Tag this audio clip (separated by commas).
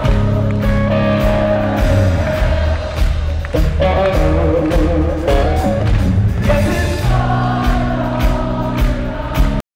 Female singing, Male singing, Music, Choir